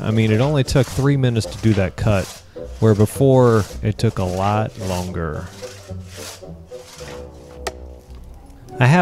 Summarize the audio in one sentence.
A man talking and scrapping noise